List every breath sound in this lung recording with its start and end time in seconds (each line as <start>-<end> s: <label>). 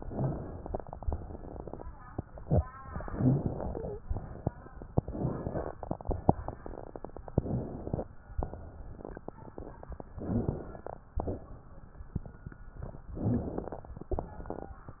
0.00-0.78 s: inhalation
1.04-1.82 s: exhalation
3.00-4.00 s: inhalation
4.10-4.67 s: exhalation
4.93-5.71 s: inhalation
5.79-6.57 s: exhalation
7.38-8.12 s: inhalation
8.42-9.20 s: exhalation
10.21-11.08 s: inhalation
11.21-11.99 s: exhalation
13.17-13.95 s: inhalation
14.10-14.88 s: exhalation